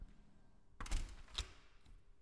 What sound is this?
window closing